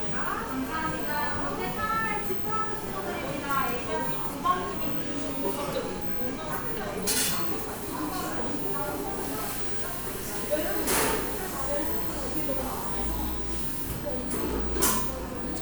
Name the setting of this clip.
cafe